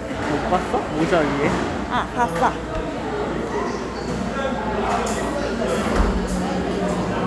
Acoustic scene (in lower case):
cafe